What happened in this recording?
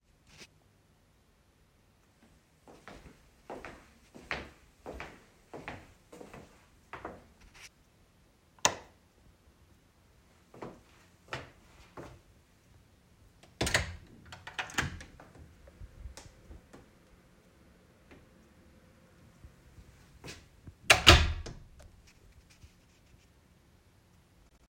I started recording outside the room and walked in, producing clearly audible footsteps. I then flipped the light switch on and off. I walked to the door, opened it slowly, and then closed it again.